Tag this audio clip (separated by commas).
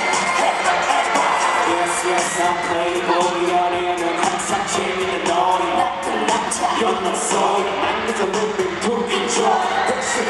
Music